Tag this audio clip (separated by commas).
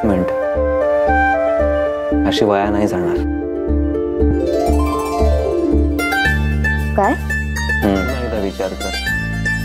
inside a small room, Speech, Music